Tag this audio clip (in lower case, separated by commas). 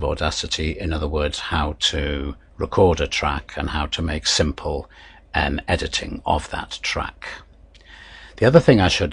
speech